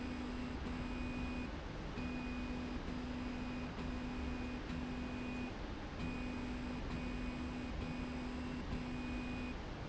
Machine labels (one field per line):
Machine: slide rail